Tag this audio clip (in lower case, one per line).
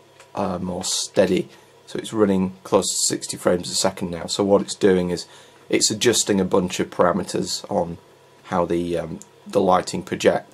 speech